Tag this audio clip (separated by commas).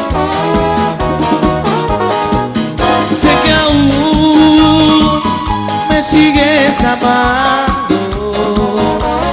Music